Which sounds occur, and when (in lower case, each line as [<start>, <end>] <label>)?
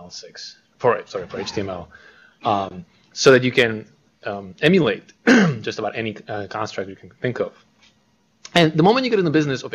[0.01, 9.74] background noise
[0.04, 0.49] man speaking
[0.77, 1.86] man speaking
[2.33, 2.79] man speaking
[3.02, 3.85] man speaking
[4.19, 5.00] man speaking
[5.24, 7.58] man speaking
[8.43, 9.74] man speaking